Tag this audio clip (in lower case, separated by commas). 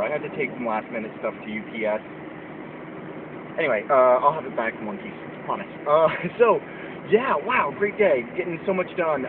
car, vehicle, speech